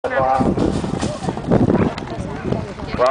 A man talking over a annoy followed by wind interference